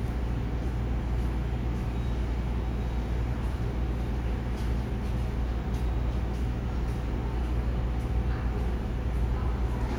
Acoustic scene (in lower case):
subway station